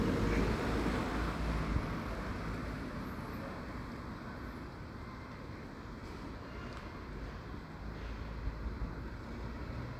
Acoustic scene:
residential area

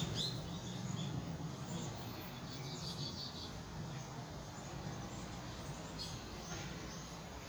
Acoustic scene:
park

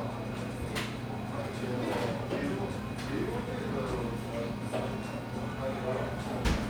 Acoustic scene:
crowded indoor space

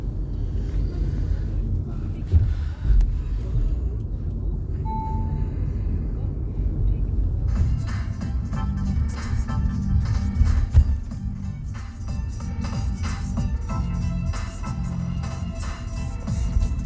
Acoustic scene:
car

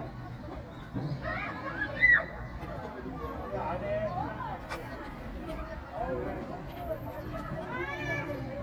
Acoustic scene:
park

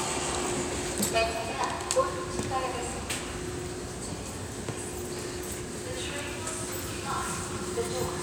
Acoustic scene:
subway station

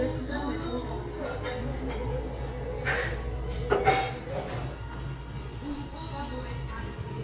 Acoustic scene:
restaurant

